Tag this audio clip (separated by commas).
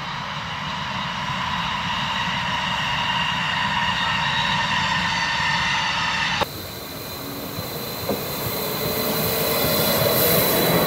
Rail transport, Railroad car, Vehicle, Train